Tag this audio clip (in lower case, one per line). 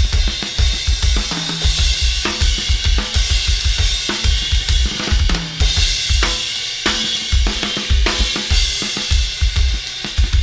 cymbal
playing cymbal
hi-hat